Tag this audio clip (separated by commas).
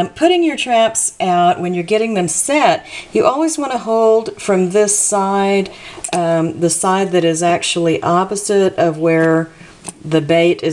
Speech